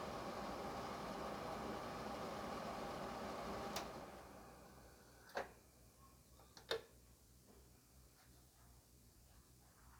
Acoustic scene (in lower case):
kitchen